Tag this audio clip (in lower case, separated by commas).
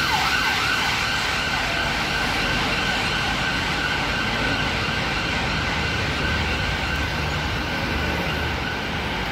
ambulance siren